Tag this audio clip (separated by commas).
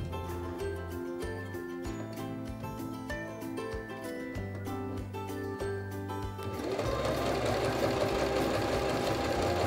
using sewing machines